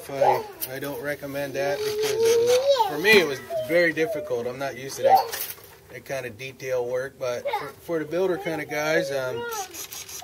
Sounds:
Speech, outside, urban or man-made

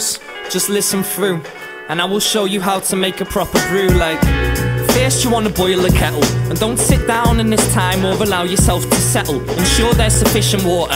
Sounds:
Jazz, Soundtrack music, Rhythm and blues, Speech, Music

